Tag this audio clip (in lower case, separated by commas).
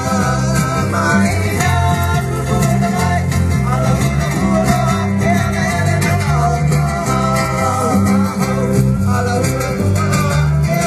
music, singing